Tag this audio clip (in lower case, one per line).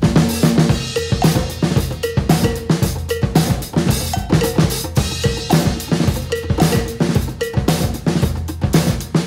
drum kit
drum
musical instrument
music